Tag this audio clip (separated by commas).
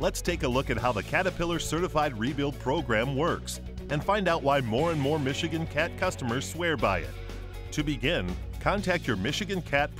Speech, Music